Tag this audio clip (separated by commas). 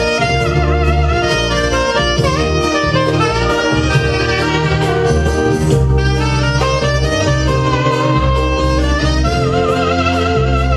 woodwind instrument, Saxophone, Music, playing saxophone, Musical instrument, Jazz, Brass instrument